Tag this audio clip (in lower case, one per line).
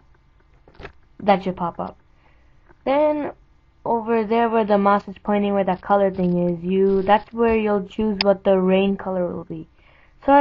speech